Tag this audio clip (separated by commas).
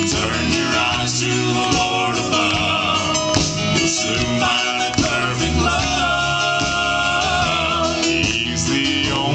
Music, Singing